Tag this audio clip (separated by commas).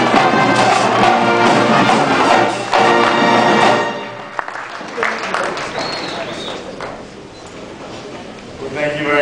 monologue, Music, Male speech, Speech